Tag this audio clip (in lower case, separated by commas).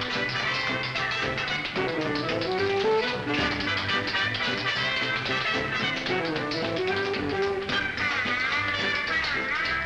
tap, music